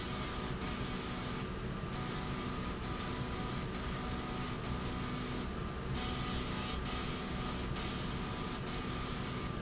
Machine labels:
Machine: slide rail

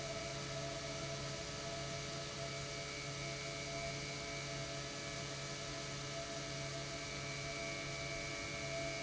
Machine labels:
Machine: pump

